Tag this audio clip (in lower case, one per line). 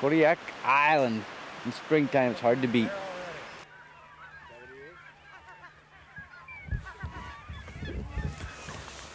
animal
speech
outside, rural or natural
goose